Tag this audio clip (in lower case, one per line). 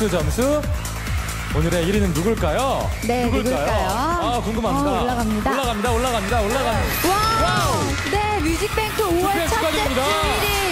music
speech